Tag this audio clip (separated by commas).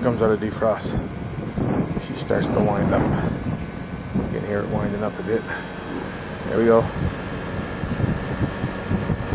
Speech